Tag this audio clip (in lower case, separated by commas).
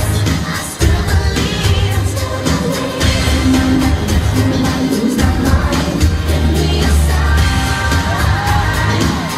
music